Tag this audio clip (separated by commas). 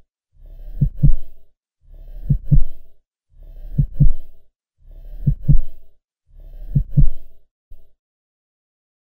Heart sounds